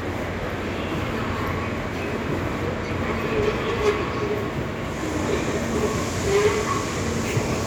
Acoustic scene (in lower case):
subway station